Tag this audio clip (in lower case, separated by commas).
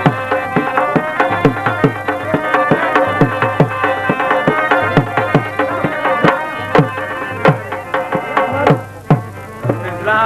music, middle eastern music